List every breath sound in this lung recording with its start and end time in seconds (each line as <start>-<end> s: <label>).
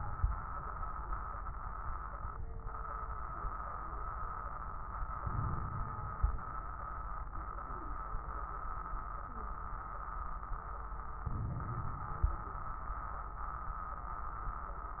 5.20-6.48 s: inhalation
5.20-6.48 s: crackles
11.25-12.54 s: inhalation
11.25-12.54 s: crackles